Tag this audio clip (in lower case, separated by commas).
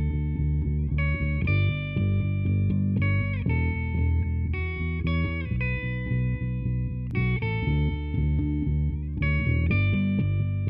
bass guitar, electric guitar, plucked string instrument, guitar, musical instrument, music, acoustic guitar